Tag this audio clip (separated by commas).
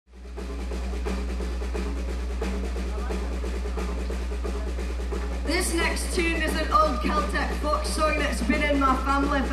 Music